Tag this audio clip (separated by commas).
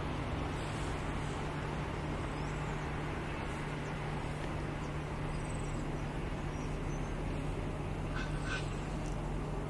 Railroad car, Vehicle, Train, Rail transport